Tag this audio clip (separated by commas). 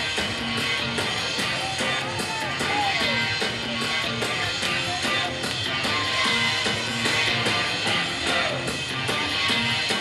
Funk, Music